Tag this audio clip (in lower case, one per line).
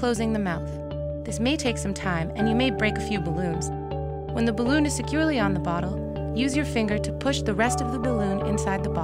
speech
music